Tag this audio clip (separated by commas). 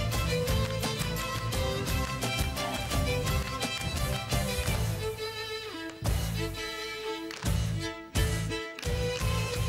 Musical instrument, Violin, Music